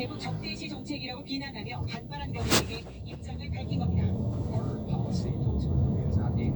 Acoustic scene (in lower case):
car